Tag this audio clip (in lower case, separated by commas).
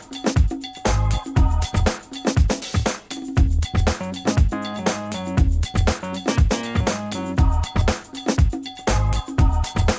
music